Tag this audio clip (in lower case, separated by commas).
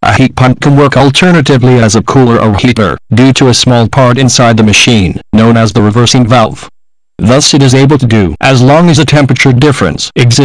speech